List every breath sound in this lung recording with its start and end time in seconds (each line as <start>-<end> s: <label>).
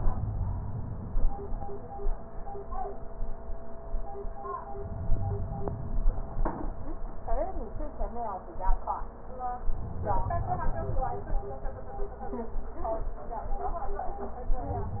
4.76-6.43 s: inhalation
9.68-11.35 s: inhalation